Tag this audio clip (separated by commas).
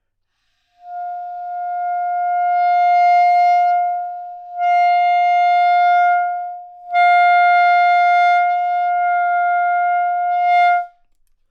woodwind instrument, Music, Musical instrument